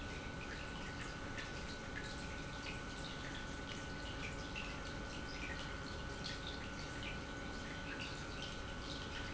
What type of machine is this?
pump